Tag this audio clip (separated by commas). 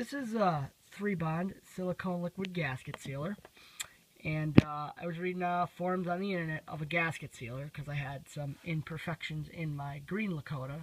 Speech